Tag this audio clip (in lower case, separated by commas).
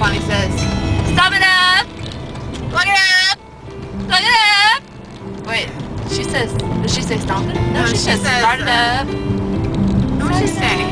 speech, music